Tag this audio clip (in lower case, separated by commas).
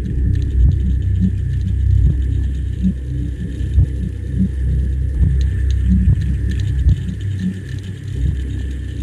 soundtrack music, music, rumble